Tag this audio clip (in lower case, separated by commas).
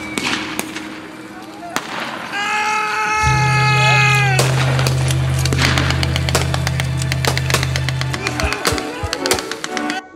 music, speech